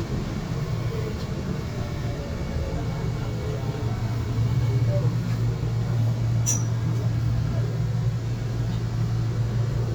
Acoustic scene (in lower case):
subway train